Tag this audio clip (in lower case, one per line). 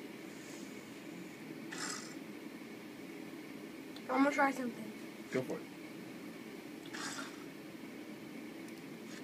inside a small room
speech